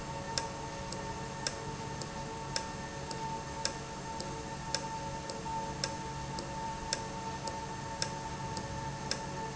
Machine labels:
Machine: valve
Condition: normal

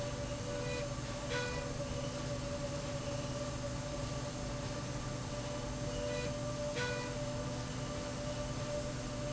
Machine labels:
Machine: slide rail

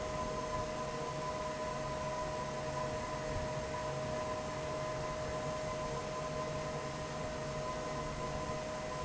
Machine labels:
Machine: fan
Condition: normal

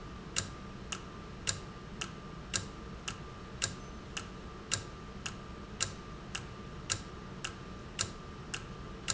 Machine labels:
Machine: valve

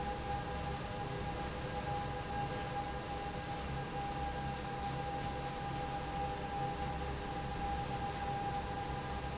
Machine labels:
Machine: fan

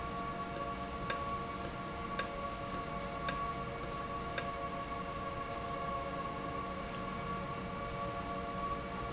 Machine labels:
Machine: valve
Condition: normal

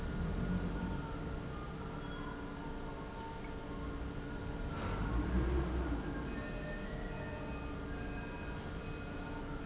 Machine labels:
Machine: pump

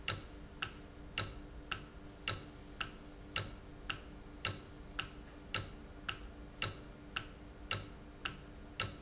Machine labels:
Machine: valve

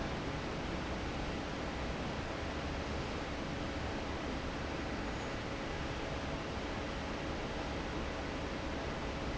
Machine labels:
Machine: fan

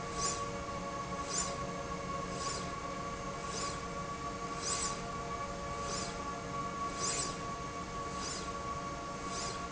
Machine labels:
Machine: slide rail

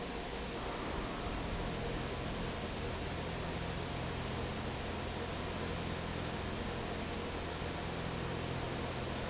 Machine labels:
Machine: fan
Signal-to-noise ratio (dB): -6 dB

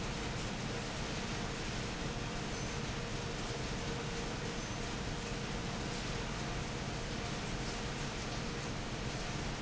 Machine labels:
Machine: fan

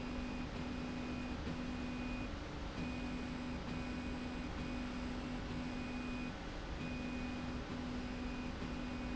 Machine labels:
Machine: slide rail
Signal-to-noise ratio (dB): 0 dB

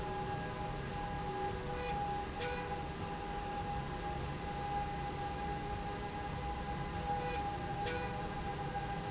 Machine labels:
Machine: slide rail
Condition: normal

